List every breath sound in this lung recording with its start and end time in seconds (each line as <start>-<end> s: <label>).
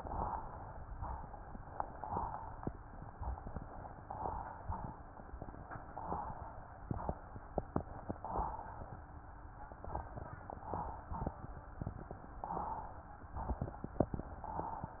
0.00-0.73 s: inhalation
1.78-2.60 s: inhalation
4.02-4.84 s: inhalation
5.92-6.74 s: inhalation
8.23-9.05 s: inhalation
10.57-11.15 s: inhalation
12.43-13.24 s: inhalation
14.42-15.00 s: inhalation